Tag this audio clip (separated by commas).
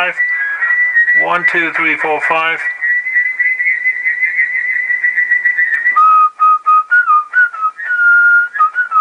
Whistling